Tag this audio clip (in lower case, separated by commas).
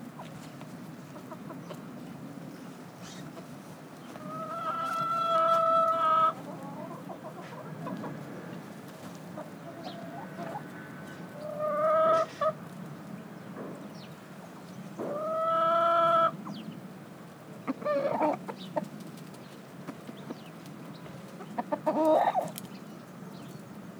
fowl, livestock, chicken, animal